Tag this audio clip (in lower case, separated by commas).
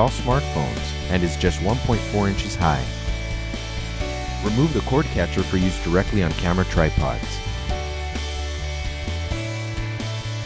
speech, music